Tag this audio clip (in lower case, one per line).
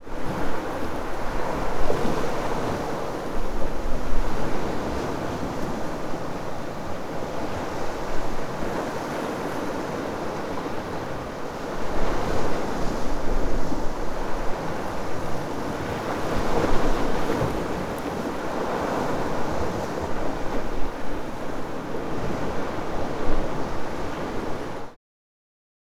ocean
surf
water